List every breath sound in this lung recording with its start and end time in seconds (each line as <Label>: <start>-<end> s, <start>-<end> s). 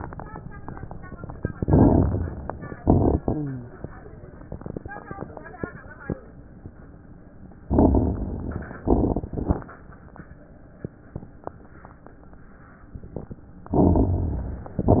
Inhalation: 1.52-2.73 s, 7.67-8.80 s, 13.74-14.76 s
Exhalation: 2.75-3.66 s, 8.84-9.77 s
Rhonchi: 3.23-3.72 s
Crackles: 1.52-2.73 s, 2.79-3.17 s, 7.67-8.80 s, 8.84-9.77 s, 13.74-14.76 s